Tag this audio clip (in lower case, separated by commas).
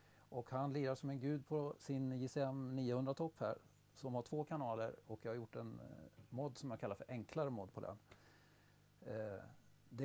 speech